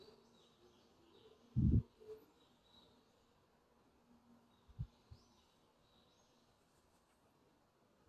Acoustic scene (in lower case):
park